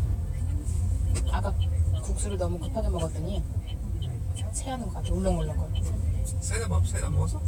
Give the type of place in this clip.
car